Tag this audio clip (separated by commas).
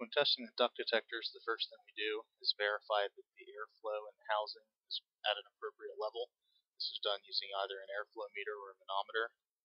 Speech